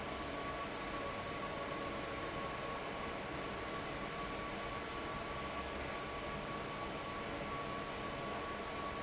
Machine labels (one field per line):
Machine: fan